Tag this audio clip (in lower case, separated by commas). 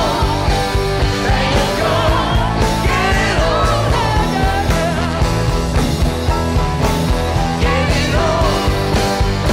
playing gong